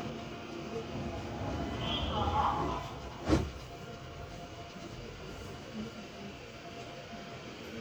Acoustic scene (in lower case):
subway train